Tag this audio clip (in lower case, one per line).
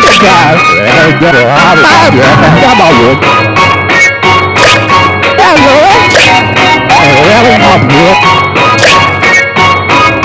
music
speech